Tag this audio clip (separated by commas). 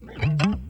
Plucked string instrument, Music, Guitar, Musical instrument